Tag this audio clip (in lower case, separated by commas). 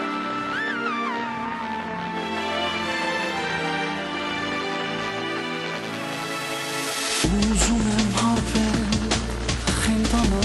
rhythm and blues, music